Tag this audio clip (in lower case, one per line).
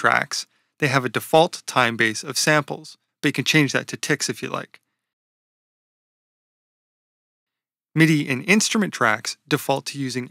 speech